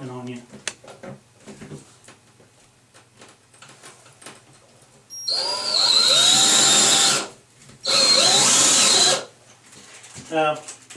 A man speaks followed by some rustling then vibrations from a power tool